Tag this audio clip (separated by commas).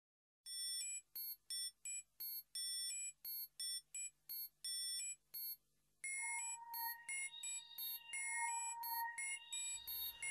Music